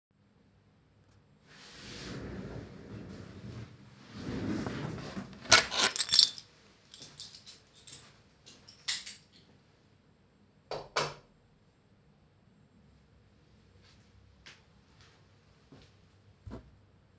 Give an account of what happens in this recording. I stood up from my office chair, picked up my keychain, turned off the light and left.